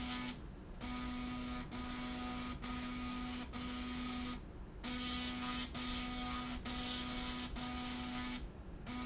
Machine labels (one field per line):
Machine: slide rail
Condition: abnormal